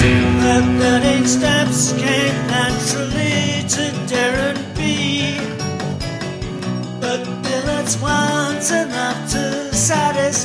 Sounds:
Independent music, Music

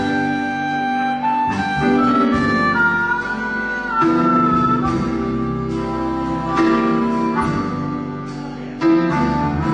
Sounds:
woodwind instrument, Harmonica

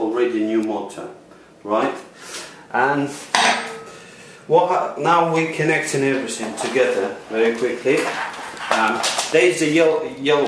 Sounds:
Speech

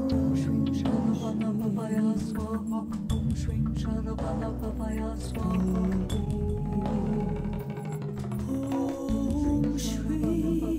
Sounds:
Mantra, Music

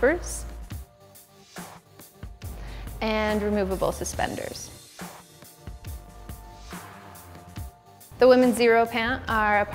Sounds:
Speech, Music

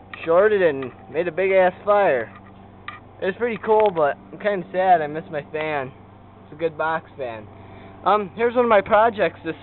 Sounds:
Speech

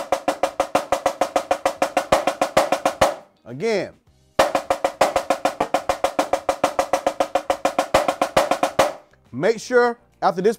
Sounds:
playing snare drum

